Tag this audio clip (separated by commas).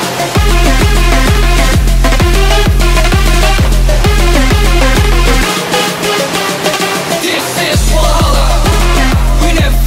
Music